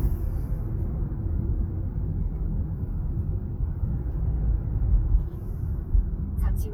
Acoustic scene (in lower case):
car